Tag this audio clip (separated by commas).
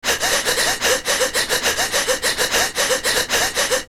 Breathing, Respiratory sounds